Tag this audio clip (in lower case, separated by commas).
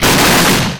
explosion